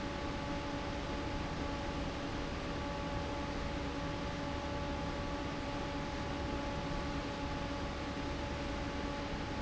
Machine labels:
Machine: fan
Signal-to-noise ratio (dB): -6 dB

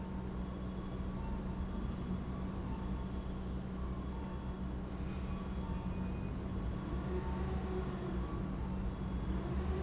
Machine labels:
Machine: pump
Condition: normal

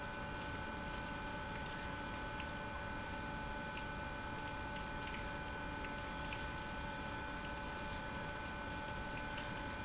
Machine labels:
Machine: pump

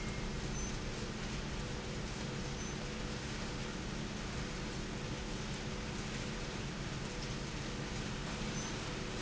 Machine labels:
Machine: slide rail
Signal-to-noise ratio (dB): -6 dB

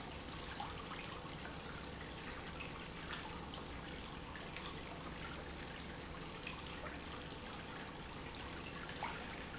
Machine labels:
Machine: pump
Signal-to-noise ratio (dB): 6 dB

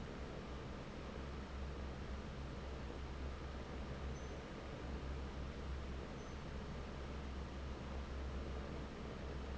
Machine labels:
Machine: fan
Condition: normal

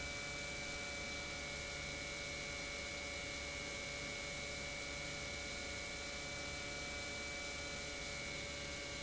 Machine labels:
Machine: pump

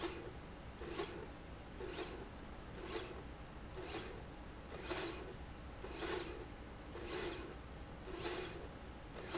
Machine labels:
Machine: slide rail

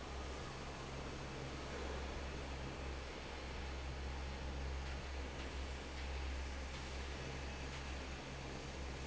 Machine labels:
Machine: fan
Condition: normal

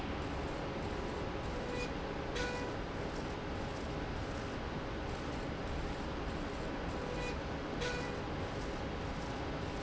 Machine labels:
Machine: slide rail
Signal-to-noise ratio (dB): -6 dB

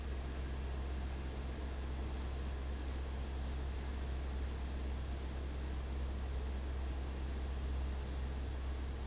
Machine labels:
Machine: fan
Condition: abnormal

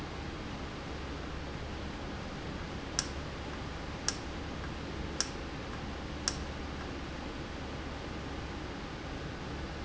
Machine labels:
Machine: valve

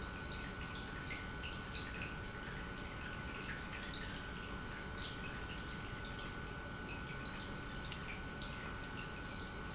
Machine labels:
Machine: pump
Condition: normal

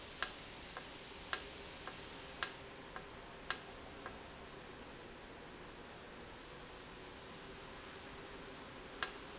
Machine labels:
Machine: valve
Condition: normal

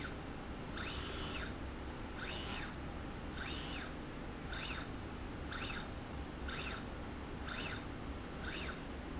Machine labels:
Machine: slide rail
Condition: normal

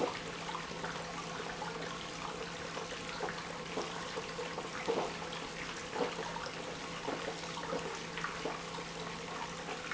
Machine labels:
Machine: pump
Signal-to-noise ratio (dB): 6 dB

